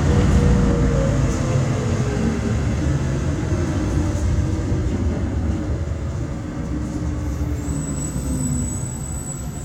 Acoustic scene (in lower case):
bus